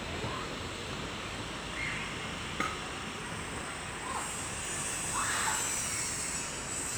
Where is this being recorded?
in a residential area